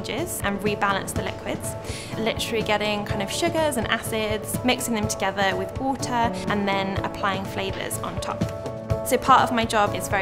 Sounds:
music, speech

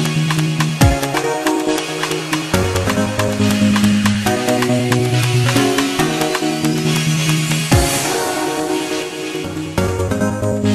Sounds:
music, electronic music, dubstep

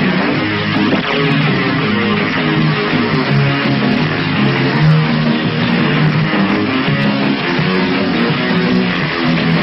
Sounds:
music, electric guitar, plucked string instrument, guitar, musical instrument

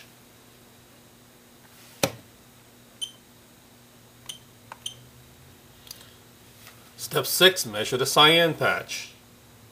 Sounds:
speech, inside a small room

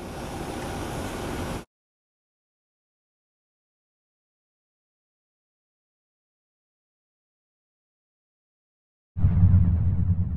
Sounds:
vehicle, truck

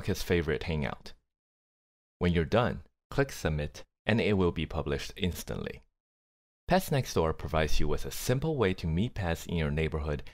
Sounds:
speech

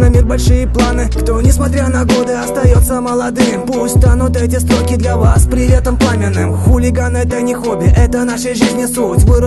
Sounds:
music

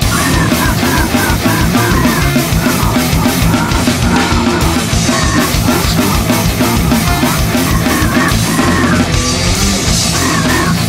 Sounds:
music, drum, musical instrument, drum kit

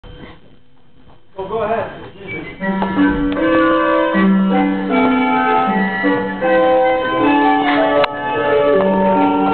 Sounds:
music, inside a large room or hall, speech

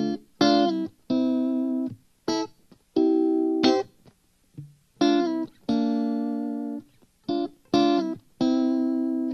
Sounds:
guitar, effects unit, music, musical instrument, distortion, plucked string instrument

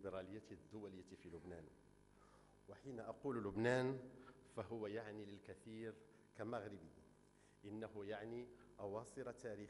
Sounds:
man speaking, speech

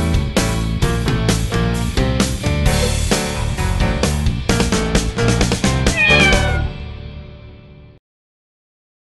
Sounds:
meow, music

